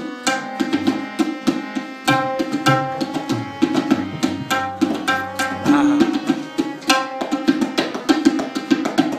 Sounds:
playing tabla

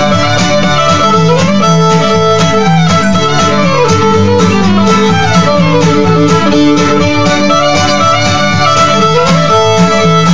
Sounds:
Violin, Music, Musical instrument

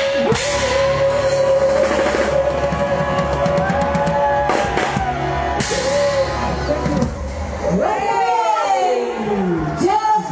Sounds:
Rock music, Speech, Drum, Music, Drum kit, Gospel music

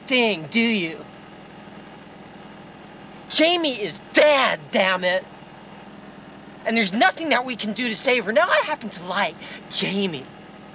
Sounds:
Speech

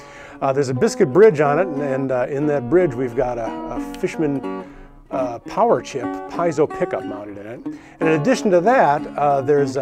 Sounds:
Plucked string instrument, Music, Guitar, Musical instrument, Strum, Speech

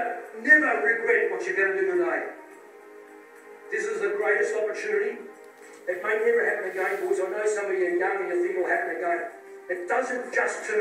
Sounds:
man speaking, Narration, Music, Speech

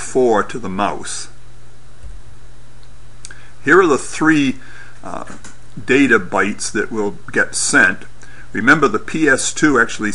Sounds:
Speech

